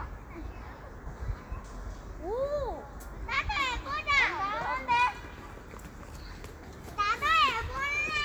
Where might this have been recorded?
in a park